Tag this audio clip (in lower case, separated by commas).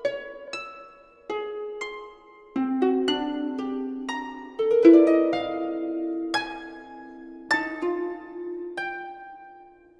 musical instrument, music, harp